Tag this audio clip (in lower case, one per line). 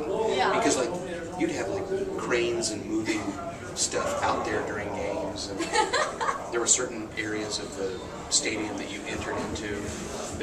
speech